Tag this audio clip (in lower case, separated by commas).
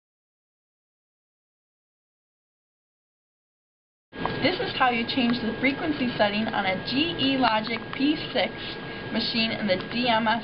speech